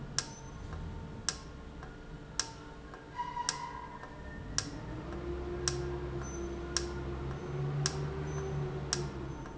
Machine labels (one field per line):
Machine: valve